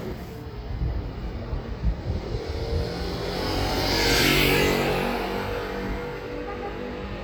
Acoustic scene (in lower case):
street